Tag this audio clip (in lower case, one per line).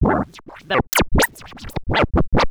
scratching (performance technique)
music
musical instrument